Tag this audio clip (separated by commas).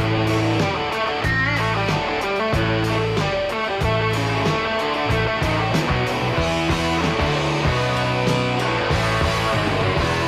Music